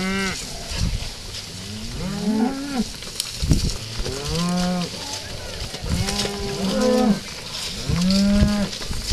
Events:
0.0s-0.3s: moo
0.0s-9.1s: rustle
0.0s-9.1s: wind
0.6s-1.1s: wind noise (microphone)
1.8s-2.8s: moo
3.4s-3.9s: wind noise (microphone)
4.0s-4.9s: moo
5.8s-7.2s: moo
7.8s-8.7s: moo

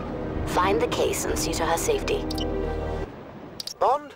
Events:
0.0s-3.0s: music
0.0s-4.1s: wind
0.4s-2.2s: female speech
2.3s-2.4s: clicking
3.5s-3.7s: clicking
3.8s-4.1s: man speaking

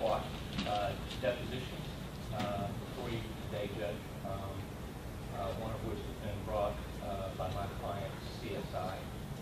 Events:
0.0s-0.3s: male speech
0.0s-9.4s: mechanisms
0.5s-0.9s: male speech
0.5s-0.6s: generic impact sounds
1.1s-1.8s: male speech
1.1s-1.1s: tick
2.1s-2.2s: tick
2.3s-2.7s: male speech
2.4s-2.4s: generic impact sounds
2.8s-3.1s: surface contact
2.9s-3.2s: male speech
3.5s-4.0s: male speech
4.2s-4.6s: male speech
4.5s-4.6s: tick
5.3s-6.7s: male speech
7.0s-7.7s: male speech
7.8s-9.0s: male speech

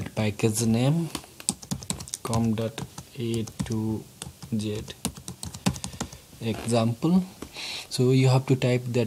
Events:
0.0s-9.0s: mechanisms
4.6s-6.2s: computer keyboard
7.2s-7.5s: generic impact sounds
7.5s-7.9s: breathing
7.9s-9.0s: man speaking

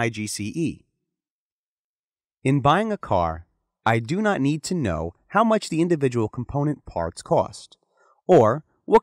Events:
0.0s-0.8s: male speech
2.4s-3.4s: male speech
3.8s-5.1s: male speech
5.3s-7.7s: male speech
7.8s-8.2s: breathing
8.3s-8.6s: male speech
8.6s-8.8s: breathing
8.8s-9.0s: male speech

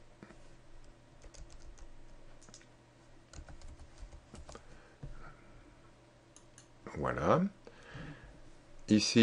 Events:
0.0s-9.2s: background noise
0.2s-0.4s: generic impact sounds
0.8s-0.9s: computer keyboard
1.2s-1.9s: computer keyboard
2.0s-2.2s: computer keyboard
2.3s-2.6s: computer keyboard
3.3s-4.8s: computer keyboard
4.6s-6.0s: breathing
6.3s-6.4s: computer keyboard
6.5s-6.7s: computer keyboard
6.8s-7.5s: male speech
7.6s-8.4s: breathing
8.9s-9.2s: male speech

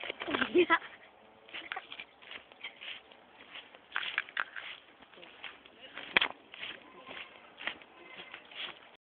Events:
0.0s-0.3s: generic impact sounds
0.0s-9.0s: wind
0.3s-1.1s: laughter
1.5s-2.1s: generic impact sounds
1.6s-2.1s: laughter
2.3s-2.4s: generic impact sounds
2.6s-3.1s: generic impact sounds
3.4s-3.8s: generic impact sounds
4.0s-4.9s: generic impact sounds
5.1s-5.7s: generic impact sounds
5.1s-5.7s: human voice
5.9s-6.2s: human voice
6.0s-6.3s: generic impact sounds
6.6s-6.8s: generic impact sounds
6.8s-8.3s: goat
7.0s-7.4s: generic impact sounds
7.6s-7.8s: generic impact sounds
8.2s-8.8s: generic impact sounds

